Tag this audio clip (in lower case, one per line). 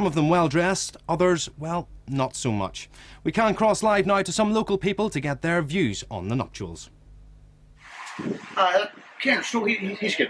speech